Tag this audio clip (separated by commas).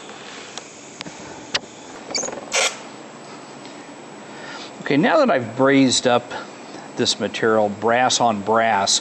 Speech, inside a small room